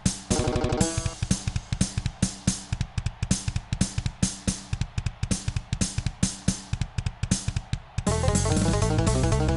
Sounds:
Musical instrument, Music

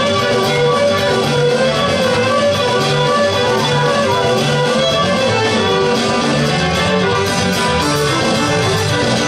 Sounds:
Music of Latin America

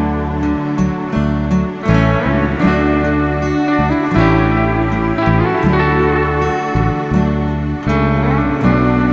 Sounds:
slide guitar, Music

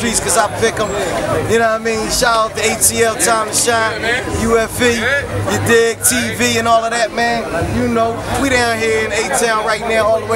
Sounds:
Speech

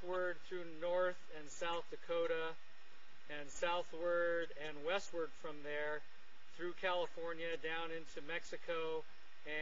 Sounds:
Speech

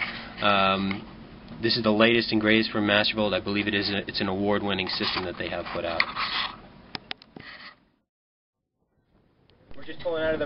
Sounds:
Speech, inside a small room

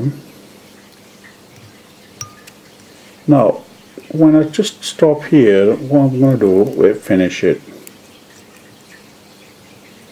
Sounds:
Speech

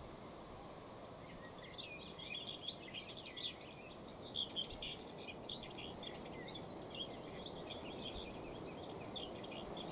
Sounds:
cuckoo bird calling

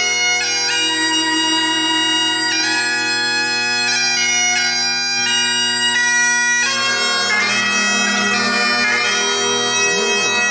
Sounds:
Music, Bagpipes, playing bagpipes

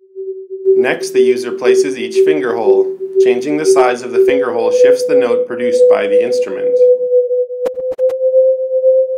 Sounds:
Sidetone, Speech, Music

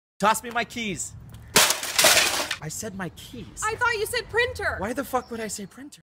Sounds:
Speech

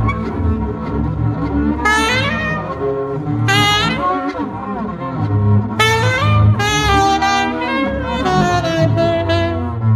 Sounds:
woodwind instrument

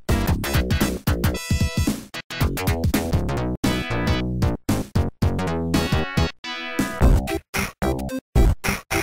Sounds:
Music

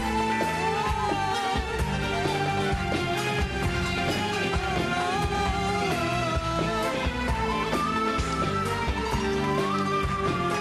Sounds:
Music, Male singing

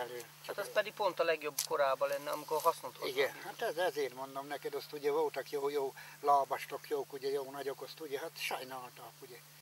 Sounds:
Speech

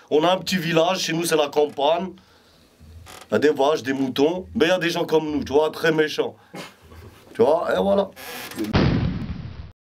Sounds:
Speech

